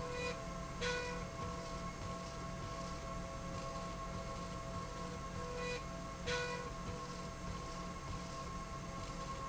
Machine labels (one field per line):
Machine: slide rail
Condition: normal